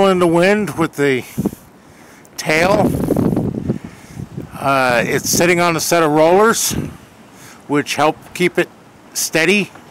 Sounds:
Wind, Wind noise (microphone)

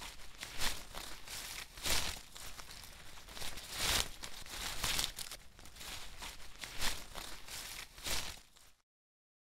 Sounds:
Rustling leaves

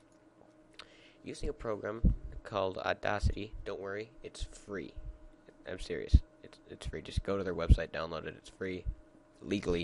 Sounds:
Speech

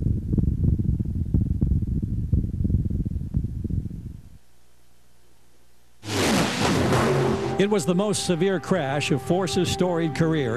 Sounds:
Race car, outside, urban or man-made, Vehicle, Speech, Silence

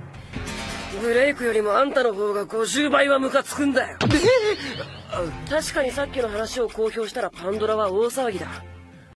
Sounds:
Music, Speech

